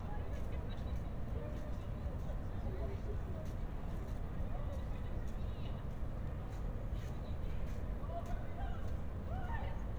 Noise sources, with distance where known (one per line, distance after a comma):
person or small group talking, far